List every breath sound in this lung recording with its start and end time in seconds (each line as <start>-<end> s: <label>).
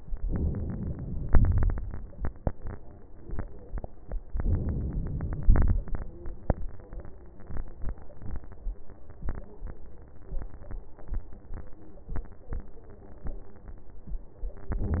0.25-1.26 s: inhalation
1.26-1.76 s: crackles
1.27-1.77 s: exhalation
4.34-5.45 s: inhalation
5.44-5.94 s: exhalation
5.44-5.94 s: crackles